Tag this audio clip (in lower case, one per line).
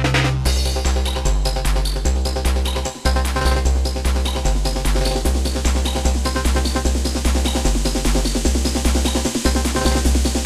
trance music